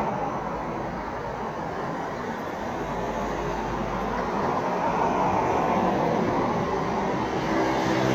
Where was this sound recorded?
on a street